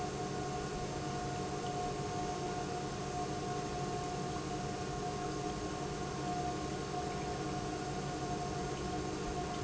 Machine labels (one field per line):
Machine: pump